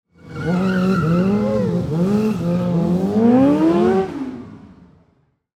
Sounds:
motorcycle, motor vehicle (road), vehicle

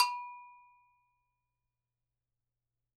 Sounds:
bell

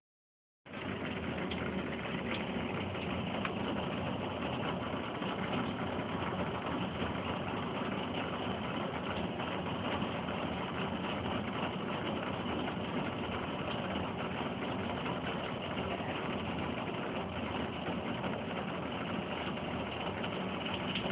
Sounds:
water, rain

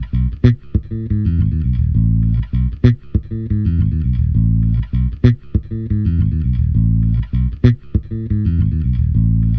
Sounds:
guitar, bass guitar, music, musical instrument, plucked string instrument

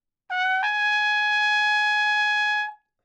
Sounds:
trumpet, musical instrument, brass instrument, music

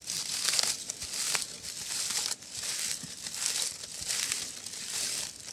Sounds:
footsteps

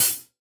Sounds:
percussion, cymbal, hi-hat, music, musical instrument

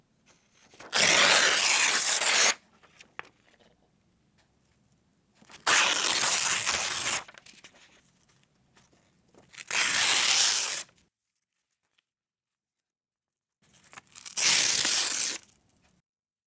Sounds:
tearing

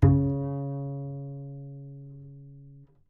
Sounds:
musical instrument, music, bowed string instrument

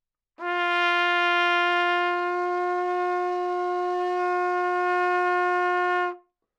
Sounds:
brass instrument, music, musical instrument, trumpet

